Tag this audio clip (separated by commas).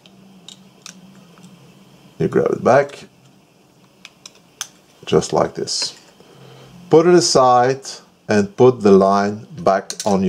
Speech